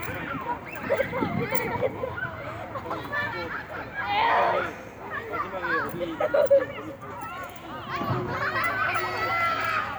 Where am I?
in a residential area